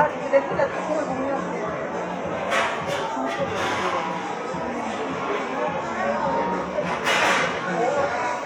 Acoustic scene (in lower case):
cafe